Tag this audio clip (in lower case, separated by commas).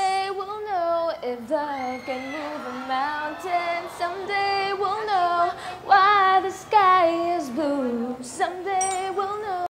female singing